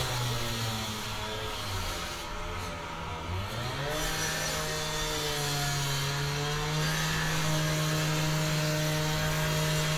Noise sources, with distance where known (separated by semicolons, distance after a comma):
small or medium rotating saw, near